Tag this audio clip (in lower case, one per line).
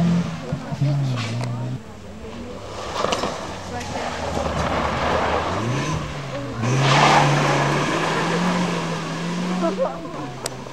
vehicle
auto racing
motor vehicle (road)
speech